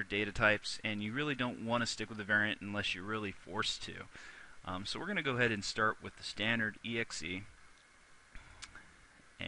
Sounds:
speech

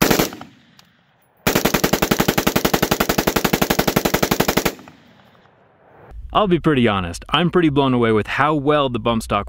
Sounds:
machine gun shooting

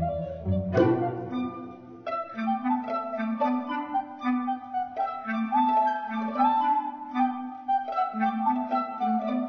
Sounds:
classical music
music
orchestra
inside a large room or hall

